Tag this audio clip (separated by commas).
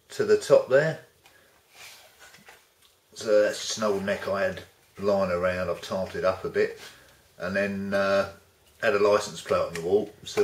Speech